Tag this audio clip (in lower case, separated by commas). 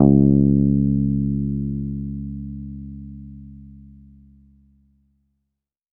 plucked string instrument, music, bass guitar, guitar, musical instrument